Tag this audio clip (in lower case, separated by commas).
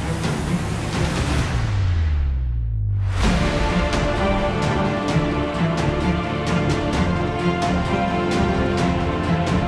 music